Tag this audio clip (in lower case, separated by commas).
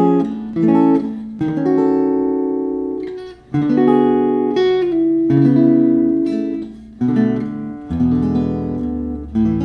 musical instrument, electric guitar, music, guitar, plucked string instrument